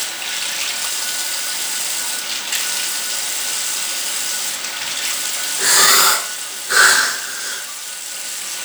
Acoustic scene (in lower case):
restroom